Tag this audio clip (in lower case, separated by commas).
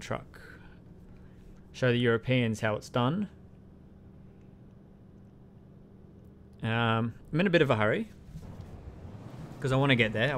vehicle, speech